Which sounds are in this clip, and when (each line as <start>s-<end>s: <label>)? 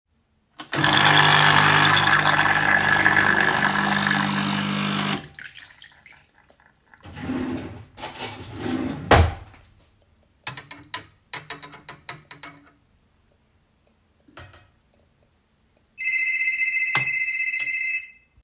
0.6s-7.0s: coffee machine
6.9s-7.9s: wardrobe or drawer
7.9s-8.7s: cutlery and dishes
8.5s-9.4s: wardrobe or drawer
10.4s-12.6s: cutlery and dishes
15.9s-18.4s: phone ringing